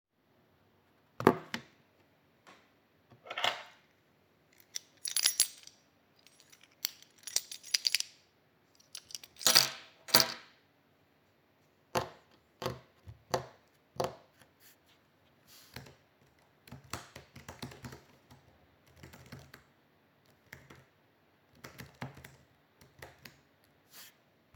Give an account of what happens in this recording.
I was typing on a computer and playing with keys, as well as tapping on the desk later on.